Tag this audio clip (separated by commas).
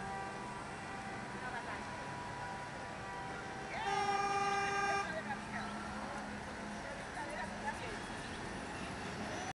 Vehicle, Speech, Bus